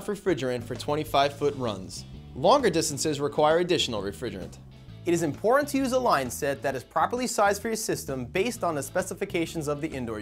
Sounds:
music, speech

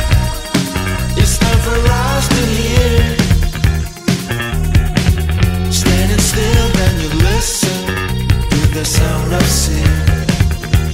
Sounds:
music, independent music

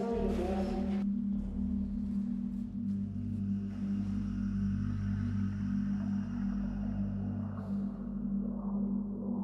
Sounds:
speech

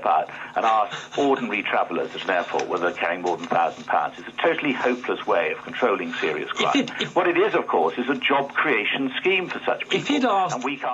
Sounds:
radio, speech

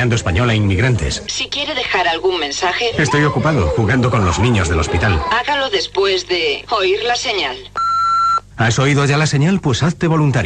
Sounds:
radio, speech

